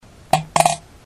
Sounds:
Fart

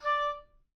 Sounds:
Wind instrument, Musical instrument, Music

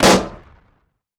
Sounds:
Explosion

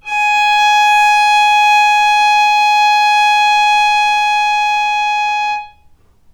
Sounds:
Musical instrument, Bowed string instrument, Music

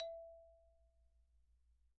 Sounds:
Music, Mallet percussion, Percussion, xylophone, Musical instrument

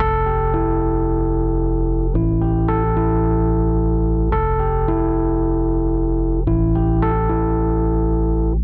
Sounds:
Piano, Musical instrument, Music, Keyboard (musical)

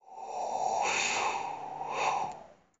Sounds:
Wind

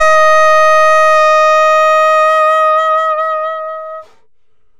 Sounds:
Music, Musical instrument, woodwind instrument

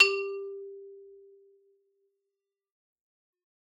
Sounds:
Percussion, Musical instrument, Music, xylophone, Mallet percussion

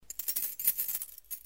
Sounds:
Domestic sounds, Keys jangling

